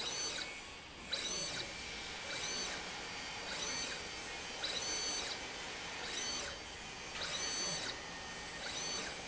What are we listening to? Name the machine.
slide rail